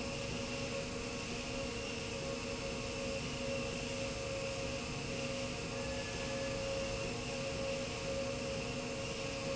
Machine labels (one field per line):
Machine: slide rail